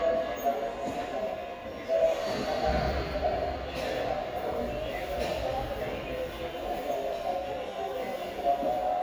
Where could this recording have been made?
in a subway station